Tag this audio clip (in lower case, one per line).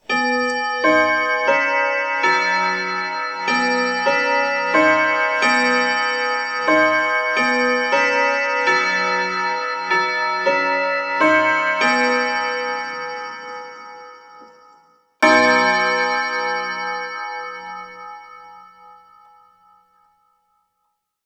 mechanisms
clock